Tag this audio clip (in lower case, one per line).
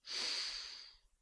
respiratory sounds